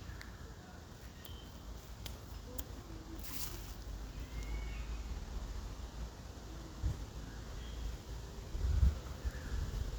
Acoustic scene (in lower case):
park